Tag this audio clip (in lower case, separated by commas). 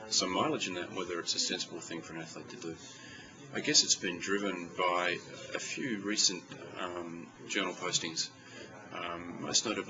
speech, inside a small room